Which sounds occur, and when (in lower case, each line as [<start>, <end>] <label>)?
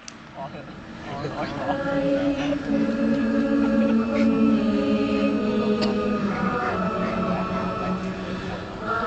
[0.00, 0.05] generic impact sounds
[0.00, 9.05] mechanisms
[0.17, 0.26] generic impact sounds
[0.27, 0.62] man speaking
[0.93, 1.26] laughter
[0.98, 1.69] man speaking
[1.57, 8.11] choir
[2.09, 2.50] laughter
[2.81, 3.92] laughter
[4.07, 4.23] generic impact sounds
[5.72, 5.83] generic impact sounds
[8.18, 8.67] breathing